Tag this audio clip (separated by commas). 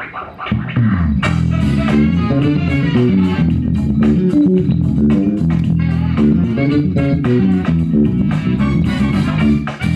Bass guitar, Music, Guitar, Plucked string instrument, Musical instrument, Electric guitar